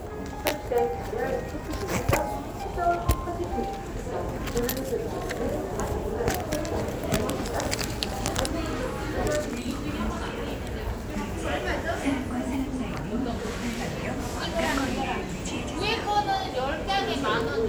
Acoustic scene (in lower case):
crowded indoor space